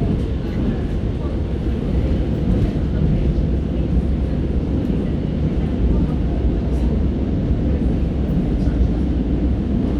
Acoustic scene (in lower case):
subway train